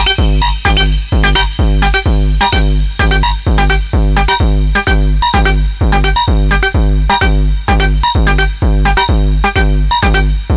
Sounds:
music
hip hop music

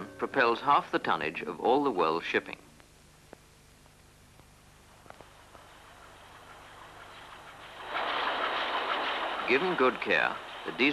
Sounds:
speech

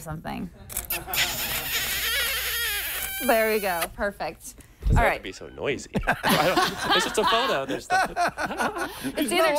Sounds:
speech

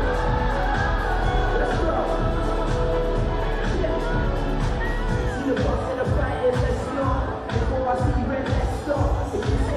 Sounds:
speech
music

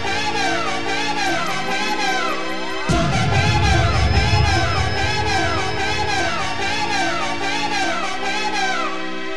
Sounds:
music

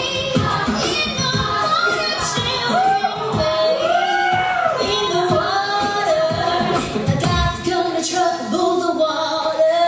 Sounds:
female singing
singing
music

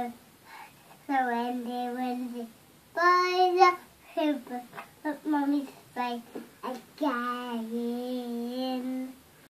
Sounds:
child singing

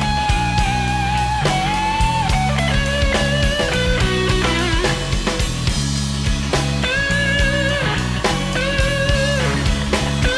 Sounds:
psychedelic rock
music
progressive rock
guitar
plucked string instrument

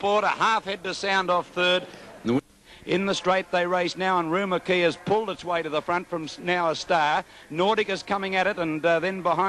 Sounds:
speech

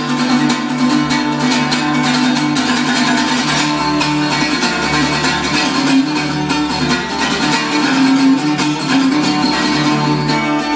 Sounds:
music
acoustic guitar
plucked string instrument
strum
musical instrument
guitar

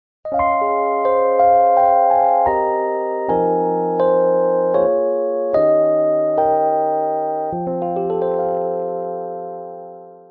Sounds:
background music
music

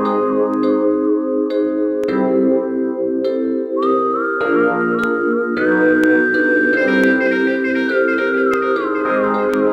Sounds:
soundtrack music
music
new-age music

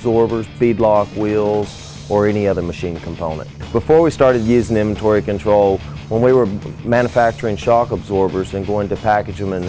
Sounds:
speech
music

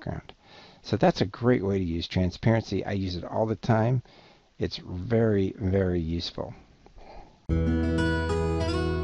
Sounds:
music
speech

